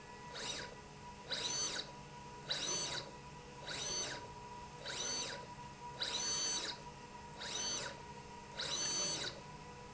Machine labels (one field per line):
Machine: slide rail